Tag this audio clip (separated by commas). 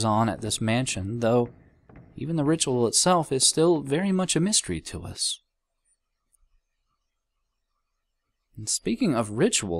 Speech